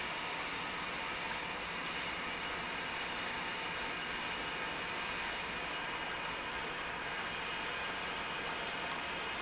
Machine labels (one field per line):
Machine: pump